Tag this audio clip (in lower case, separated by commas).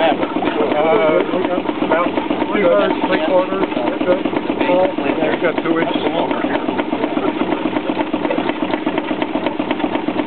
speech